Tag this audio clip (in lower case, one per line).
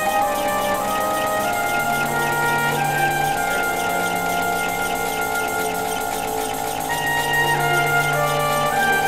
music